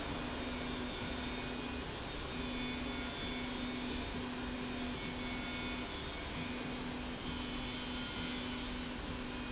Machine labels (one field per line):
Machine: slide rail